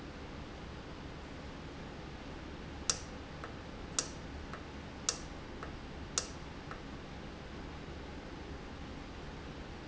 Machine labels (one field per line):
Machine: valve